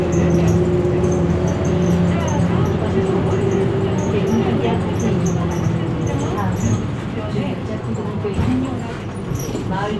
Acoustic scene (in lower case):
bus